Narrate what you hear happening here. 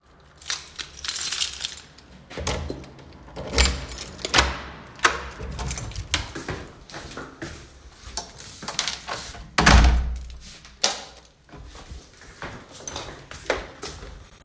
I unlocked the door and entered my appartment